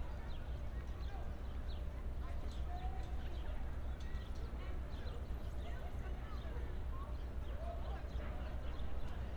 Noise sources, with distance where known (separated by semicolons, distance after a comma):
person or small group talking, far